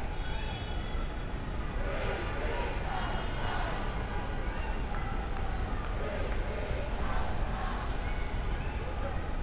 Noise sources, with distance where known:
medium-sounding engine; person or small group talking, near; large crowd

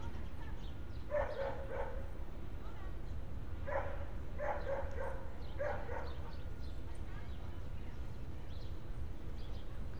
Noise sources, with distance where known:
dog barking or whining, far

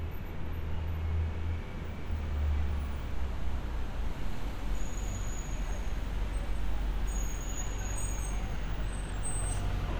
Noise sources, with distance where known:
medium-sounding engine, near

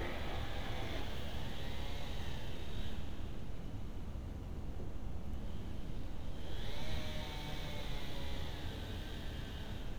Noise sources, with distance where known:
small or medium rotating saw

